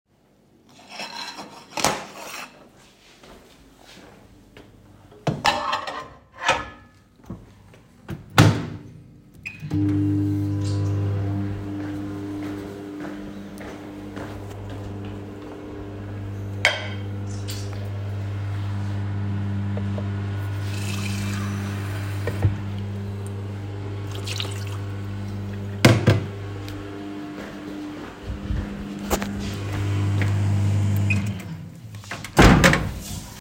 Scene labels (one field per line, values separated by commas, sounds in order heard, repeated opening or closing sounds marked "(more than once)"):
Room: kitchen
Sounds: cutlery and dishes, microwave, footsteps, running water